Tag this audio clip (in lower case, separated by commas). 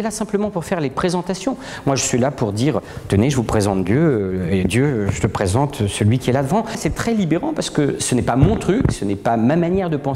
speech